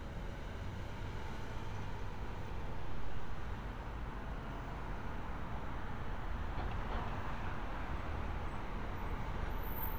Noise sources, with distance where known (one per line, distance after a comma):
medium-sounding engine